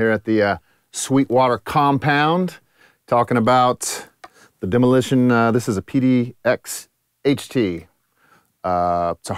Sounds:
speech

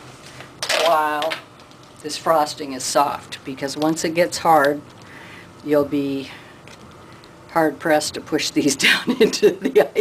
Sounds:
speech

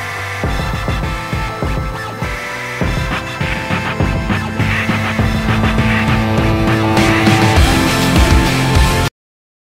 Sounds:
pop music
music
soundtrack music

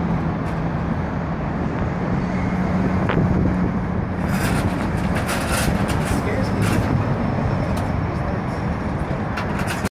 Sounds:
speech
vehicle

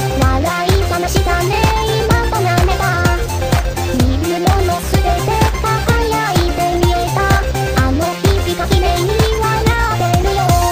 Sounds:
sampler
music

